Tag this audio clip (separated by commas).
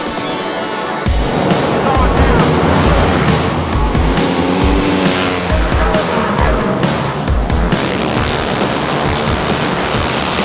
Music, Speech